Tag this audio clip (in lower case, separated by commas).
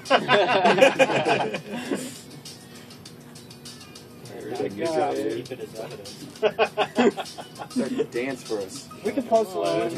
music, speech